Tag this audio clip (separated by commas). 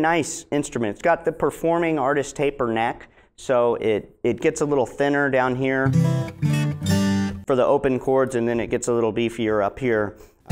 Musical instrument, Speech, Guitar, Music, Acoustic guitar, Plucked string instrument